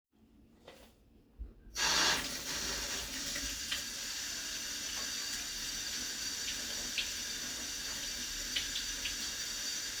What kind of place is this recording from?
kitchen